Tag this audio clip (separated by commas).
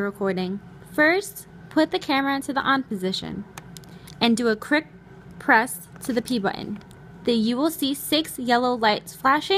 Speech